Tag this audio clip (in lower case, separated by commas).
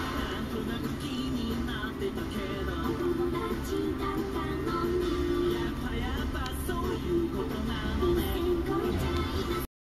music